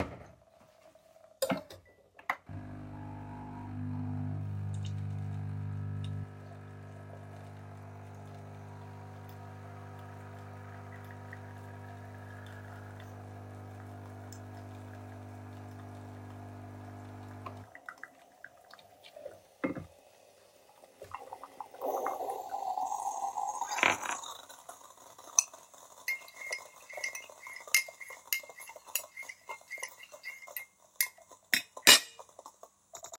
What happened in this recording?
The coffee machine brews a cup of coffee. Afterwards a spoon is used to stir the coffee in the mug.